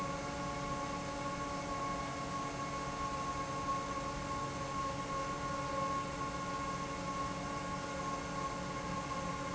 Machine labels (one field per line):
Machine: fan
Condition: normal